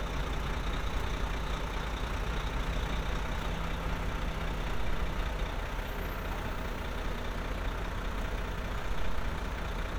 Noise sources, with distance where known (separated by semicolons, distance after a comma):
engine of unclear size, near